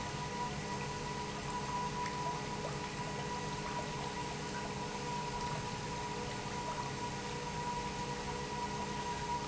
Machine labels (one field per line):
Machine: pump